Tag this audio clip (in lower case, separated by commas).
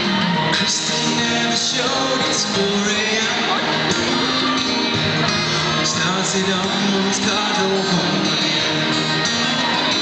music